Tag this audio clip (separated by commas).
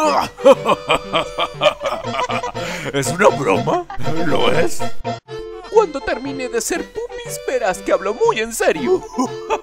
Music, Speech